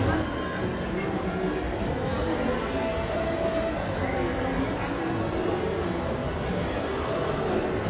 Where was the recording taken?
in a crowded indoor space